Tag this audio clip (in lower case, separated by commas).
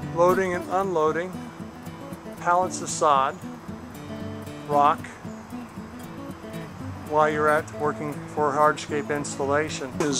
music, speech